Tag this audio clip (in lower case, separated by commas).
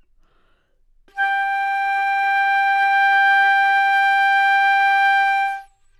musical instrument, music, woodwind instrument